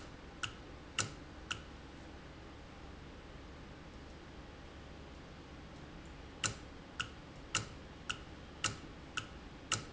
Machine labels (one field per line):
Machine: valve